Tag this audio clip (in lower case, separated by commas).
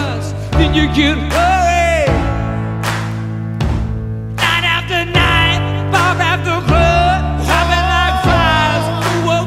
music